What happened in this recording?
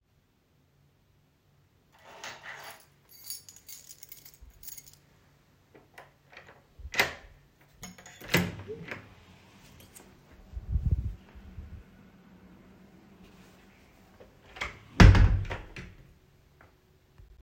The device was placed near the entrance. I handled a keychain near the door and then opened and closed the door.